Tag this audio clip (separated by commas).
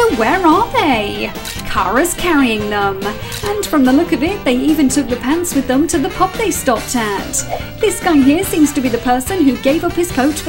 Music, Speech